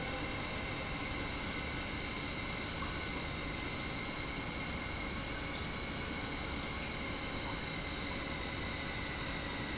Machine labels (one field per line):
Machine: pump